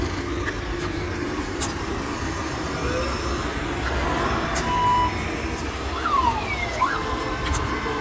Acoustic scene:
street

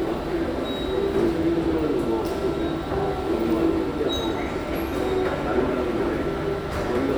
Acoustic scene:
subway station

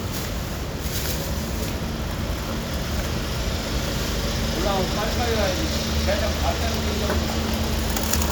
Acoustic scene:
residential area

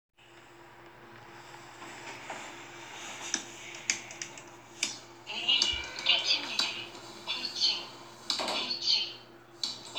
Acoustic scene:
elevator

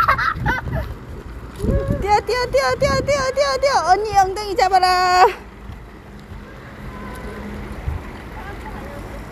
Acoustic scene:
residential area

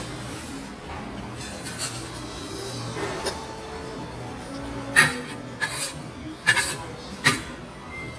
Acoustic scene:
restaurant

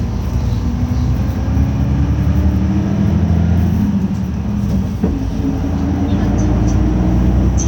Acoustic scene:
bus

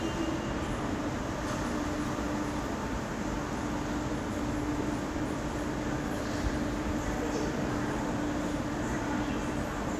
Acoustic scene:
subway station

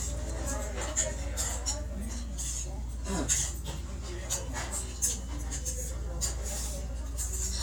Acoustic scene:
restaurant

